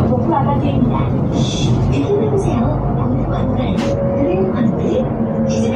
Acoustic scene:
bus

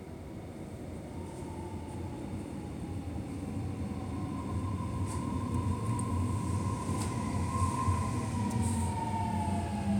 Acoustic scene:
subway station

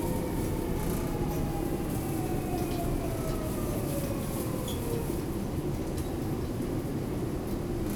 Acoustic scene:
subway station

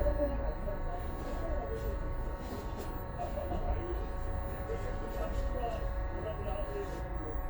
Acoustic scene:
bus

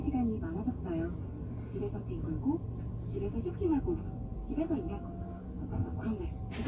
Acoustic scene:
car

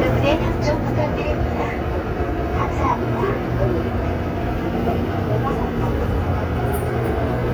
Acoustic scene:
subway train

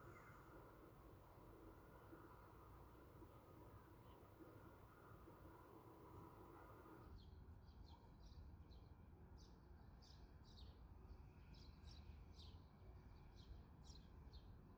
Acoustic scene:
park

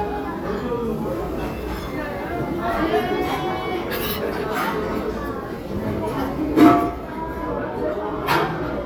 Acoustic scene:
restaurant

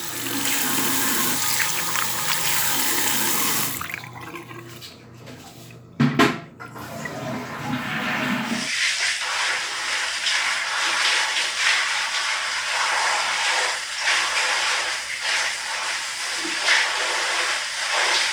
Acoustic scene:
restroom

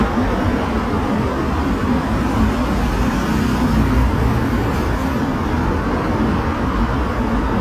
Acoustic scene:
street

